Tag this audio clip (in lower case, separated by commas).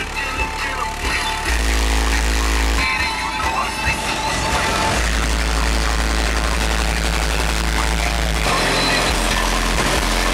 vehicle, music